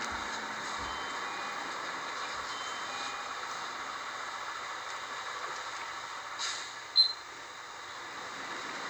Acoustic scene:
bus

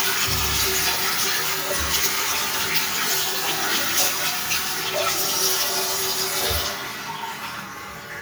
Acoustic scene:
restroom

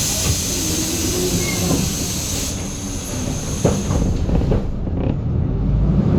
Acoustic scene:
bus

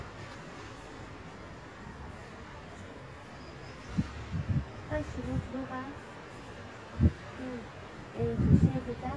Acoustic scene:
residential area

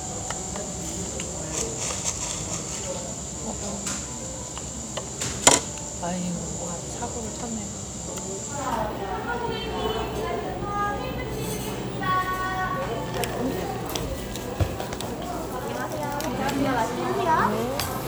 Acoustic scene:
cafe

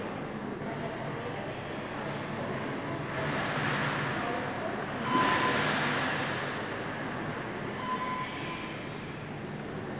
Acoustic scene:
subway station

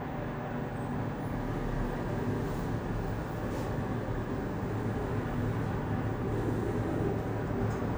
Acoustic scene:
elevator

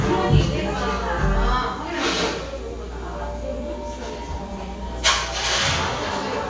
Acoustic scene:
cafe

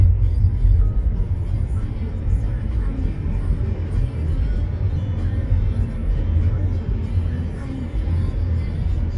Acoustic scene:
car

